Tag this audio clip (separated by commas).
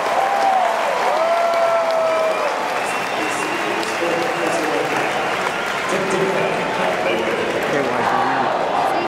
Speech